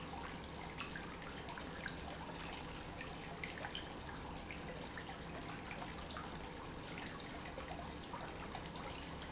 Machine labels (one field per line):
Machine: pump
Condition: normal